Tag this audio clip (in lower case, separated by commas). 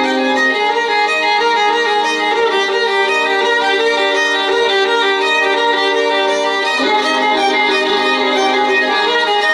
fiddle, music, musical instrument